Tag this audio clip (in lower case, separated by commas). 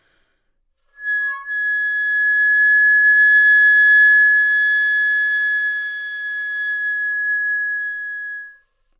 musical instrument, music, wind instrument